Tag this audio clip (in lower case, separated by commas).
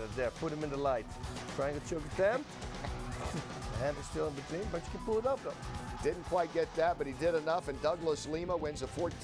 speech, music